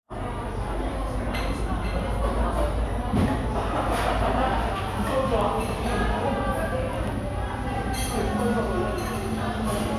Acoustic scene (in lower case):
cafe